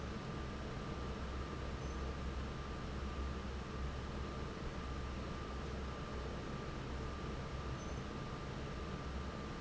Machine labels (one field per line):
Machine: fan